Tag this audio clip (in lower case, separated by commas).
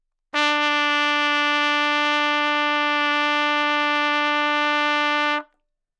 musical instrument, trumpet, brass instrument, music